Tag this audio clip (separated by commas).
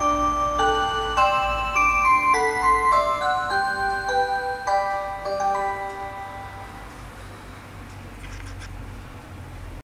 Music